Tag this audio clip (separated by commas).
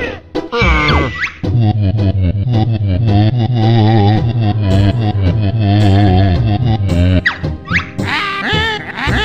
Music, inside a small room